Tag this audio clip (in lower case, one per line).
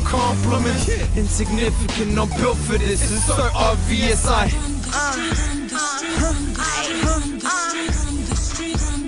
music